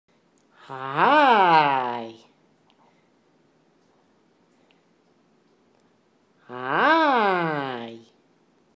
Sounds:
Speech

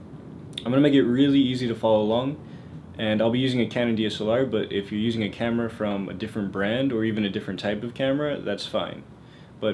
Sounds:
Speech

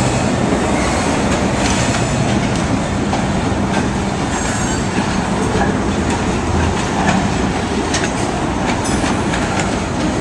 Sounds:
Vehicle, train wagon, outside, urban or man-made, Train

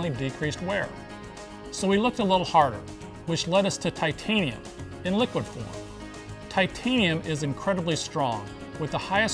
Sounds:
Music, Speech

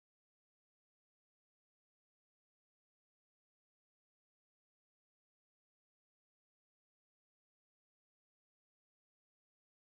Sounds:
Silence

